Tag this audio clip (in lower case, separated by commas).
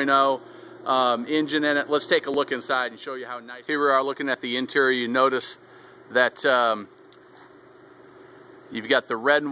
speech